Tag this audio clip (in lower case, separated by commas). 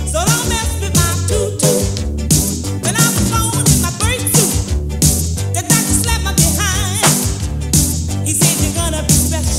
soul music, music